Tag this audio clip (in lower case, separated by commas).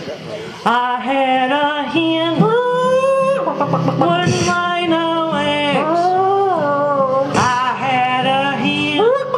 music